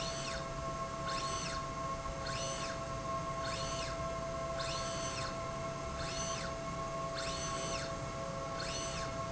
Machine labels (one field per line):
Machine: slide rail